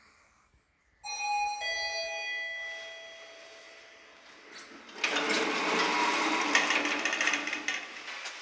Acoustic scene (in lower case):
elevator